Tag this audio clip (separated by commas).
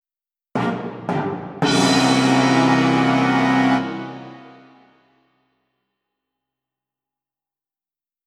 Musical instrument, Music, Brass instrument